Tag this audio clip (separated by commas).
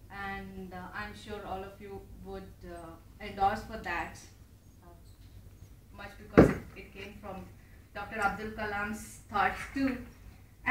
Speech, woman speaking